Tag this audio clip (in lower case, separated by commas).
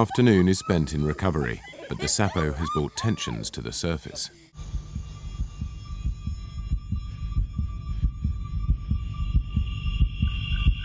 man speaking, music, speech